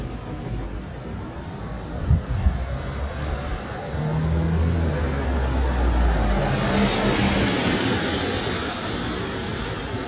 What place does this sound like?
street